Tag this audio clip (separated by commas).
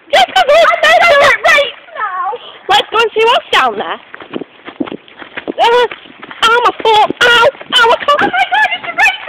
Speech, footsteps